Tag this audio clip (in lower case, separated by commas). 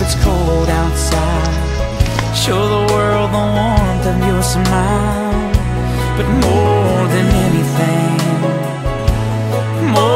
tender music, music